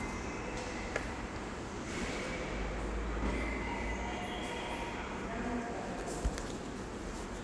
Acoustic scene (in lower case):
subway station